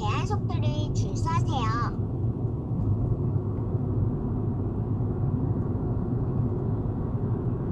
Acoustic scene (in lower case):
car